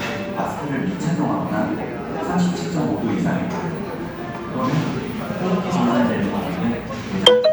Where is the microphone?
in a cafe